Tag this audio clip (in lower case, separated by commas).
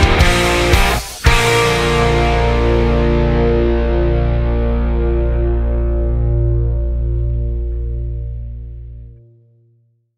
music